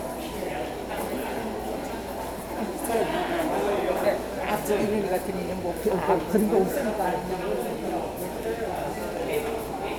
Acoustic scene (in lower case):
subway station